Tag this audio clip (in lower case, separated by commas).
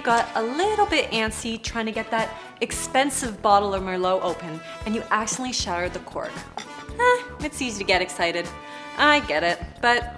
speech, music